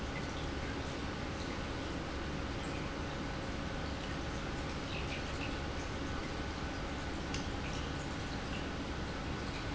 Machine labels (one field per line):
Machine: pump